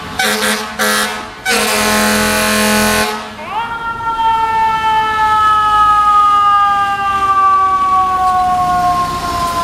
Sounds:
fire truck (siren), siren, emergency vehicle

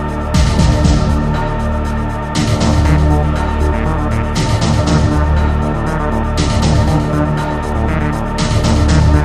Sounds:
music, theme music

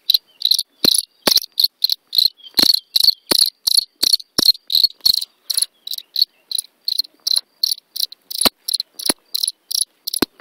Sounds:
cricket chirping

